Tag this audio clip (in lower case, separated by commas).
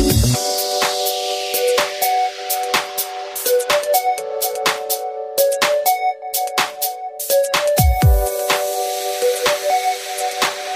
music